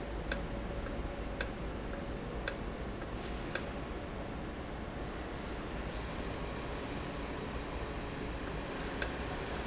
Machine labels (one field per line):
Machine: valve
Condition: normal